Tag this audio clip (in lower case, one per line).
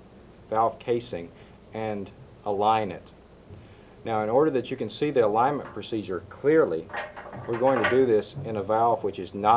speech